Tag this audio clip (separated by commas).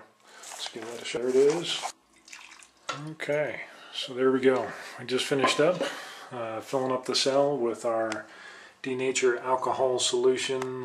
Drip, Speech